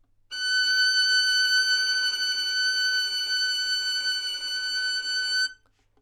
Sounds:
bowed string instrument, musical instrument, music

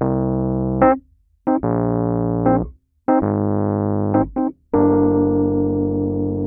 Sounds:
musical instrument, keyboard (musical), piano, music

